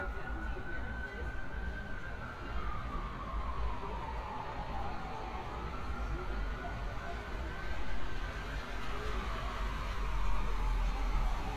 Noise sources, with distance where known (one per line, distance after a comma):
siren, far
person or small group talking